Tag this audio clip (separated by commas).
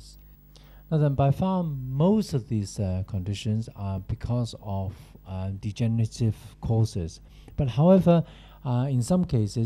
Speech